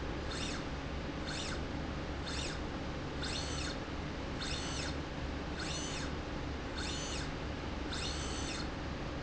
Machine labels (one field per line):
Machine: slide rail